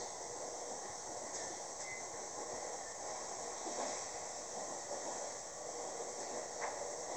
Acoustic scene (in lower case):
subway train